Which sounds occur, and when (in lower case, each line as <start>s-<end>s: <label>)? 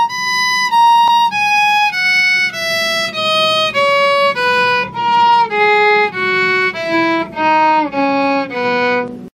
0.0s-9.3s: music